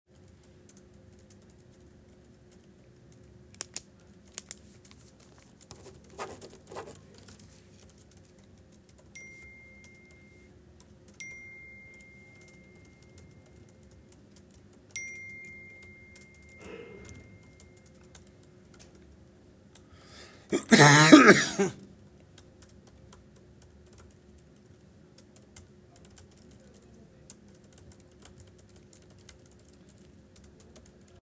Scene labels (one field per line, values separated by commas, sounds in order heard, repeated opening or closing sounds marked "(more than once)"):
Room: office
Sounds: keyboard typing, phone ringing